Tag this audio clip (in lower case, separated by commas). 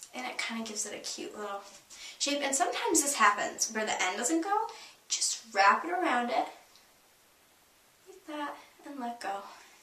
speech